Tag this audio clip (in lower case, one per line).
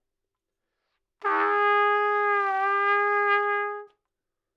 trumpet
music
musical instrument
brass instrument